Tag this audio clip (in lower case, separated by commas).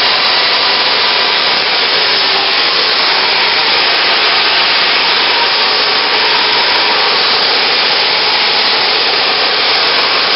white noise